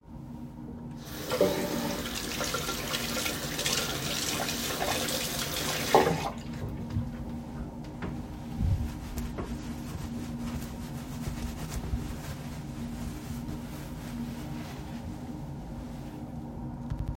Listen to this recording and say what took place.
I turned on the water tap, washed my hands, and dried them with a towel.